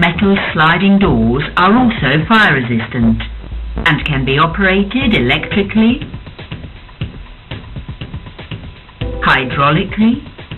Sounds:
music, speech

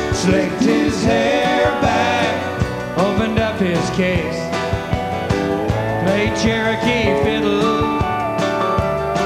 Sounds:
music, musical instrument

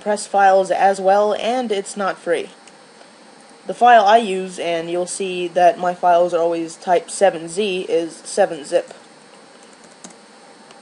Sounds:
speech

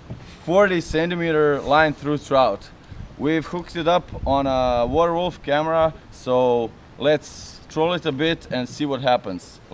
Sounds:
speech

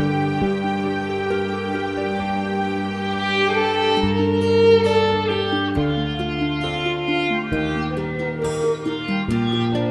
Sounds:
music, musical instrument, fiddle

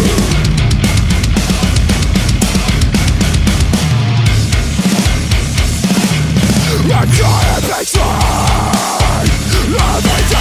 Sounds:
music

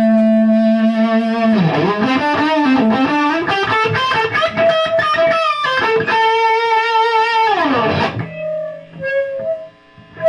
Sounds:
inside a small room, music, guitar, musical instrument

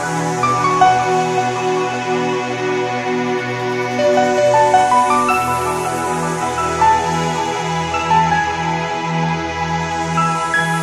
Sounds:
music

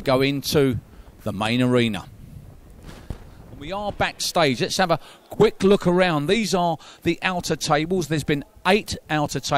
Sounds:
speech

